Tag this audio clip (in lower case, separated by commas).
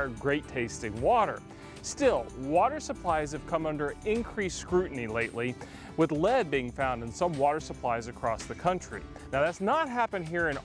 music, speech